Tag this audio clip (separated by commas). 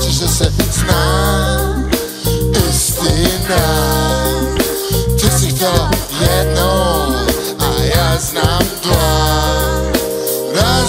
Song, Music, Ska